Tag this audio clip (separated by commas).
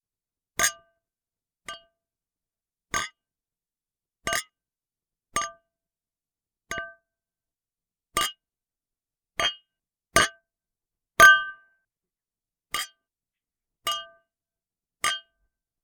Chink, Glass